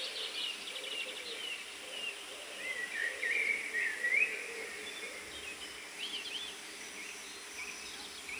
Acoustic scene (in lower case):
park